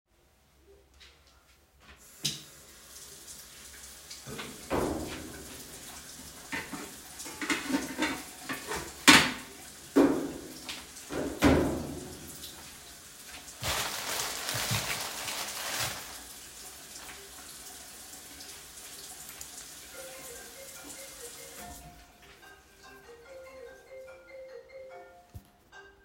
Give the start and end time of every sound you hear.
2.2s-22.0s: running water
4.6s-5.6s: wardrobe or drawer
6.5s-9.6s: cutlery and dishes
9.9s-10.7s: wardrobe or drawer
11.0s-12.3s: wardrobe or drawer
19.7s-26.0s: phone ringing

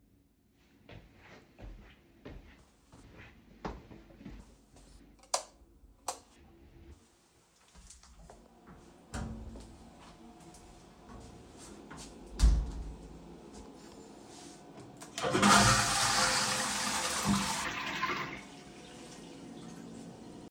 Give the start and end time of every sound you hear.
0.7s-5.2s: footsteps
5.2s-6.3s: light switch
9.1s-9.6s: door
11.7s-13.3s: door
15.1s-18.7s: toilet flushing

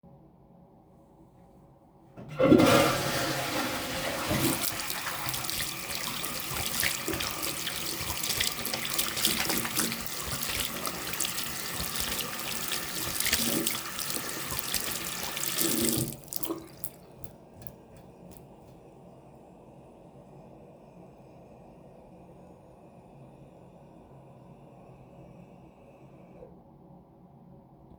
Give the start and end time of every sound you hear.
2.2s-26.5s: toilet flushing
4.1s-18.4s: running water

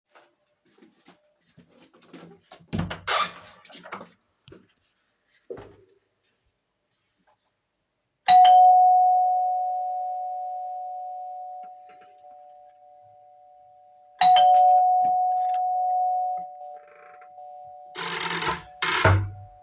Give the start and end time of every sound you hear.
0.1s-2.6s: footsteps
2.7s-3.4s: door
3.7s-4.6s: footsteps
8.3s-8.9s: bell ringing
14.2s-14.5s: bell ringing
18.0s-19.5s: door

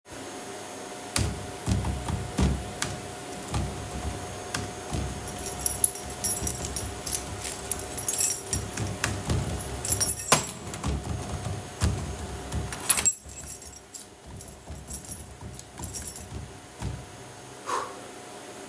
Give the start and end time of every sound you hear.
0.0s-18.7s: vacuum cleaner
1.2s-5.2s: keyboard typing
5.5s-8.7s: keys
9.0s-9.8s: keyboard typing
10.7s-12.8s: keyboard typing
12.8s-13.3s: keys
15.7s-16.5s: keys

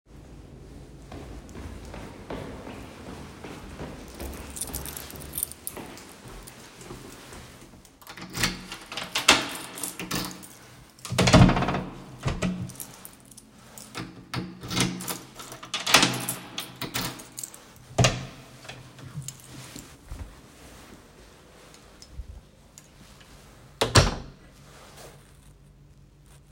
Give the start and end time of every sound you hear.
0.8s-7.8s: footsteps
4.0s-6.7s: keys
8.1s-18.9s: door
8.4s-10.8s: keys
12.7s-14.3s: keys
14.8s-17.8s: keys
19.2s-19.8s: keys
23.7s-24.5s: door

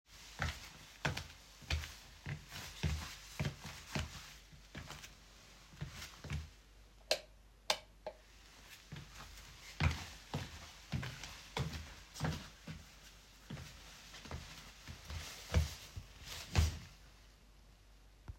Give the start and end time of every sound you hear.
0.3s-4.1s: footsteps
7.1s-7.2s: light switch
7.7s-7.8s: light switch
9.8s-12.5s: footsteps
15.1s-16.8s: footsteps

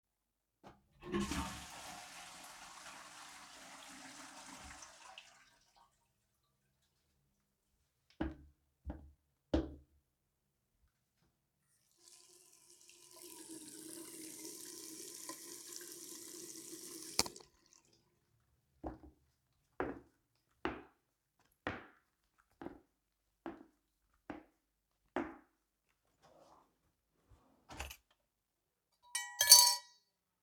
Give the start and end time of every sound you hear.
0.8s-6.0s: toilet flushing
7.8s-10.3s: footsteps
11.6s-17.8s: running water
16.9s-17.5s: cutlery and dishes
18.7s-26.7s: footsteps
27.2s-28.4s: wardrobe or drawer
27.7s-30.0s: cutlery and dishes

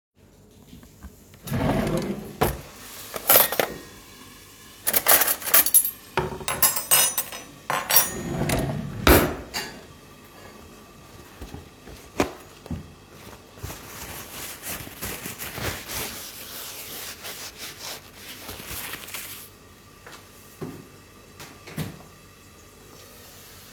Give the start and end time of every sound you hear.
1.3s-2.8s: wardrobe or drawer
3.2s-4.1s: cutlery and dishes
4.7s-8.2s: cutlery and dishes
8.5s-9.5s: wardrobe or drawer

